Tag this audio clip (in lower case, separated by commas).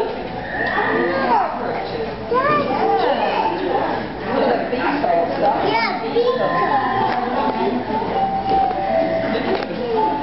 speech, music